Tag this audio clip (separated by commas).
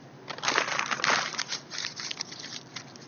Crumpling